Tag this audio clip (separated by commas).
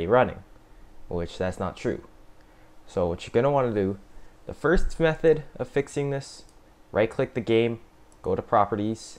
Speech